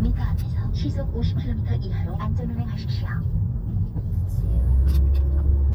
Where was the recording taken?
in a car